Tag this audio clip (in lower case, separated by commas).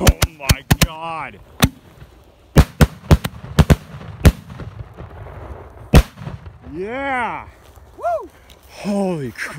lighting firecrackers